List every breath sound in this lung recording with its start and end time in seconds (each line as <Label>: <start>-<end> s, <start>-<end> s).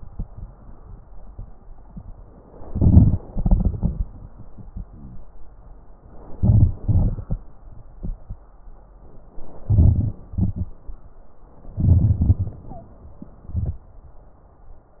Inhalation: 2.63-3.18 s, 6.35-6.78 s, 9.65-10.17 s, 11.82-12.21 s
Exhalation: 3.28-4.09 s, 6.78-7.38 s, 10.32-10.71 s, 12.23-12.62 s
Wheeze: 4.85-5.31 s
Stridor: 12.69-12.95 s
Crackles: 9.65-10.17 s